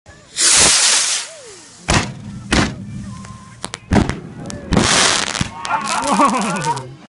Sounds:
music
speech

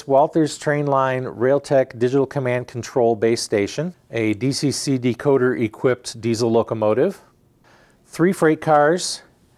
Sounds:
speech

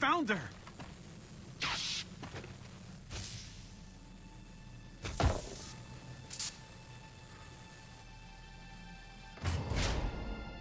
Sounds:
music
speech

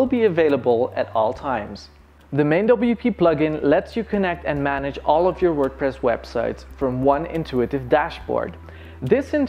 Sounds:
speech

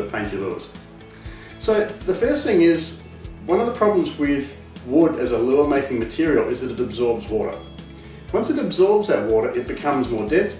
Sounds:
speech
music

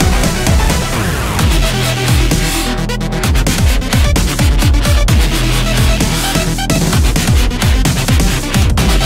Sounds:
music

